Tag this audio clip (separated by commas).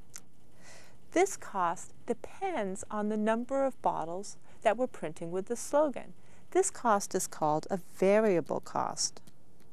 Speech